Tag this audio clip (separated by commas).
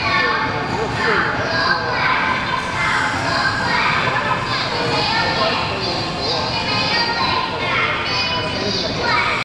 Speech